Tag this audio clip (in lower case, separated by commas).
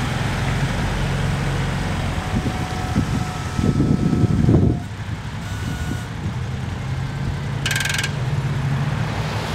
vehicle, air brake